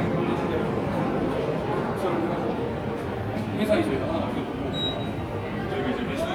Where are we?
in a subway station